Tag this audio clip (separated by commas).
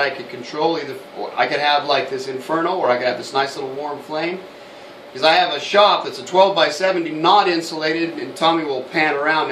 Speech